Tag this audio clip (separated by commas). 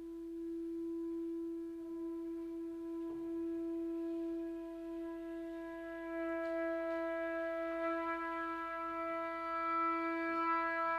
Music